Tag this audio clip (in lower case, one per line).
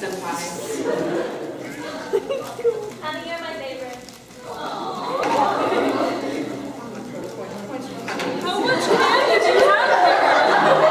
chatter
inside a large room or hall
speech